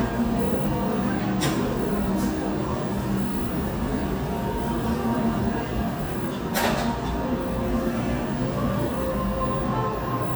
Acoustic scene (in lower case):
cafe